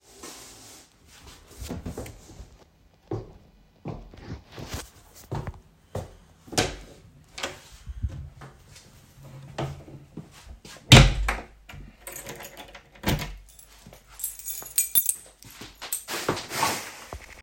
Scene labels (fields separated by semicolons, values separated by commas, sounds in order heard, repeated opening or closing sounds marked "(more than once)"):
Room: living room; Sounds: footsteps, door (more than once), keys